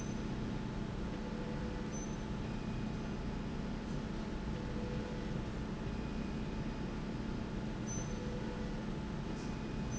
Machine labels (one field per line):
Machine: slide rail